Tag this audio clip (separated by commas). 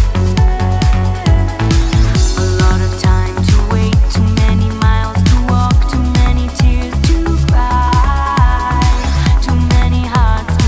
Music